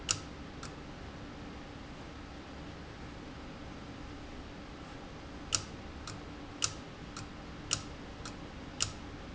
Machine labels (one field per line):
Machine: valve